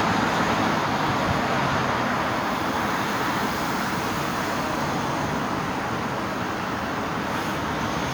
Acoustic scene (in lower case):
street